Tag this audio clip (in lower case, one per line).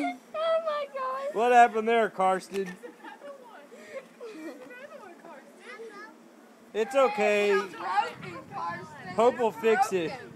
speech